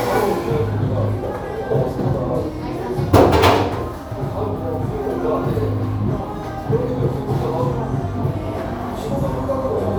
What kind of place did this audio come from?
cafe